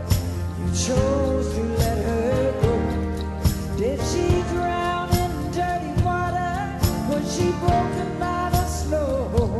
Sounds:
Music

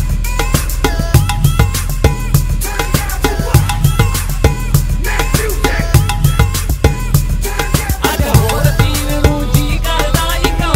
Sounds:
Music, Percussion

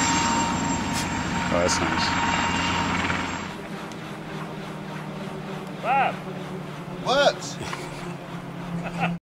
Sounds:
Speech

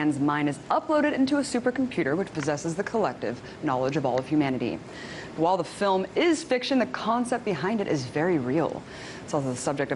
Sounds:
Speech

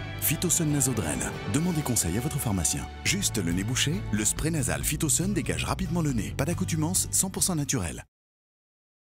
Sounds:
Speech, Music

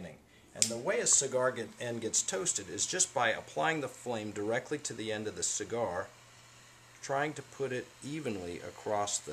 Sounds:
Speech

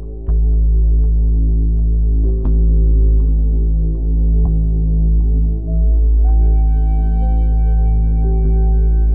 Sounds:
Music, New-age music

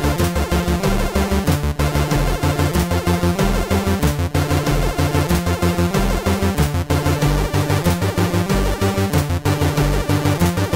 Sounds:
Soundtrack music, Music

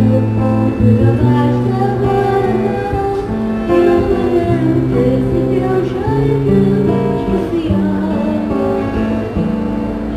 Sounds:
Child singing, Female singing, Music

